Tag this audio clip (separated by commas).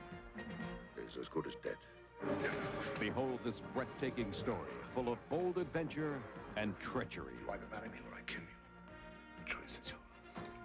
Speech, Music